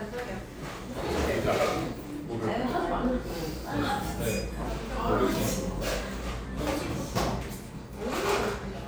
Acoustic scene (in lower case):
cafe